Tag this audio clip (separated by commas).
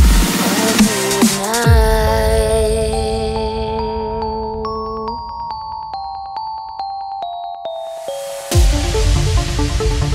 Electronic music, Music, Dubstep